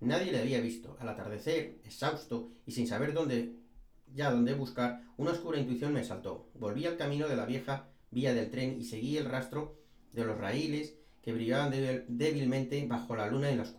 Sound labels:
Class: speech